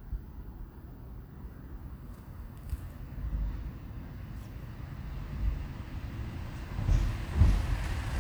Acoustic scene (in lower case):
residential area